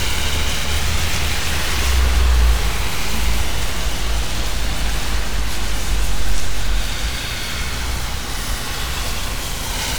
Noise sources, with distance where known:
large-sounding engine, near

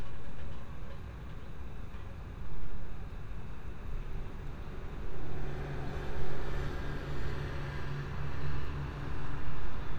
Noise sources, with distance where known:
engine of unclear size

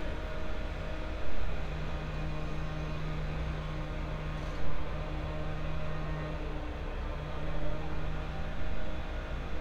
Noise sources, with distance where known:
chainsaw

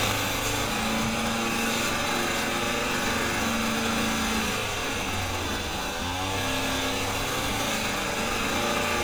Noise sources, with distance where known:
unidentified powered saw, near

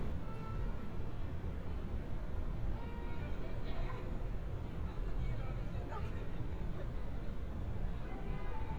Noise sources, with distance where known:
unidentified human voice

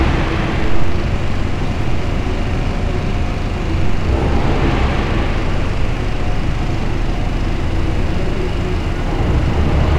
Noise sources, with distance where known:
large-sounding engine, near

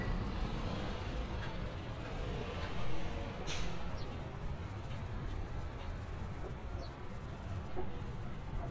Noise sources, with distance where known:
large-sounding engine

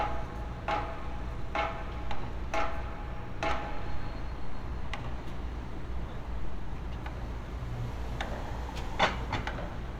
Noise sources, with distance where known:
pile driver, near

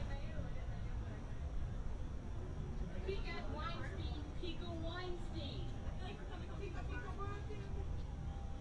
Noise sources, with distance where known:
unidentified human voice

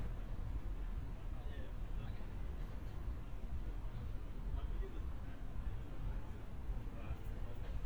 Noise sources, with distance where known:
person or small group talking, far

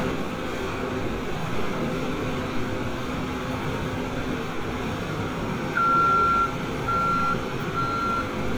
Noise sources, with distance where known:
engine of unclear size, near; reverse beeper, near

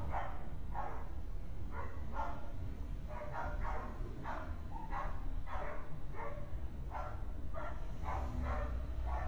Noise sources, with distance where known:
dog barking or whining, far

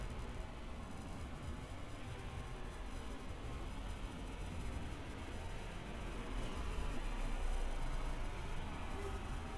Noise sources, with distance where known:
background noise

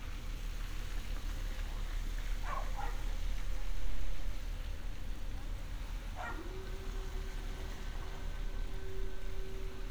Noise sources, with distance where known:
dog barking or whining, near

